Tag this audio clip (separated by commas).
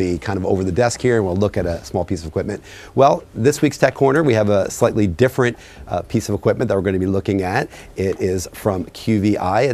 Speech